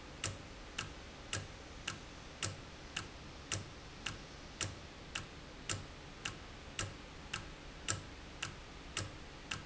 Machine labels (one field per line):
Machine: valve